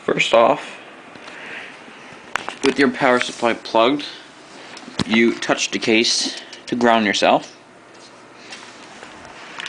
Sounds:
Speech

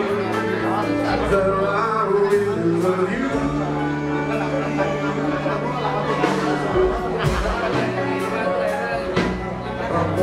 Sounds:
Speech, Jazz, Blues, Music

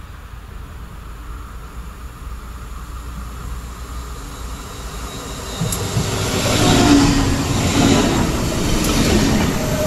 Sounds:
Railroad car, Train, Subway, Rail transport

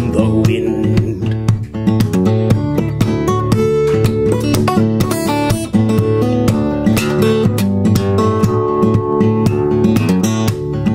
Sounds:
Musical instrument, Acoustic guitar, Plucked string instrument, playing acoustic guitar, Guitar, Music, Percussion

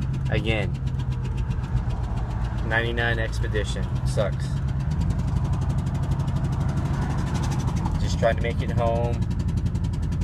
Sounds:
Motor vehicle (road), Speech, Vehicle, Car

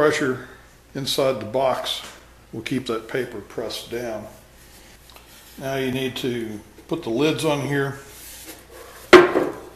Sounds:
Speech

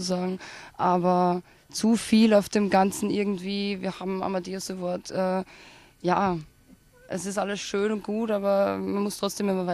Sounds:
Speech

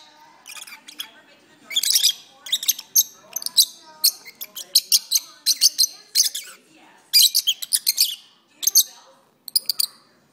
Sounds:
bird chirping

